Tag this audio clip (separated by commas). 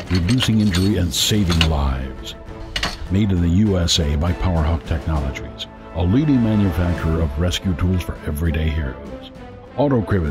Tools, Speech, Music